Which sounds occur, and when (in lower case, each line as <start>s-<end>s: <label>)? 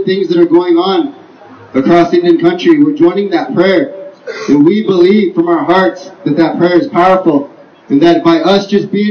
0.0s-1.0s: man speaking
0.0s-9.1s: background noise
1.0s-1.3s: reverberation
1.7s-3.8s: man speaking
3.9s-4.2s: reverberation
4.2s-4.6s: cough
4.5s-6.1s: man speaking
6.3s-7.5s: man speaking
7.9s-9.1s: man speaking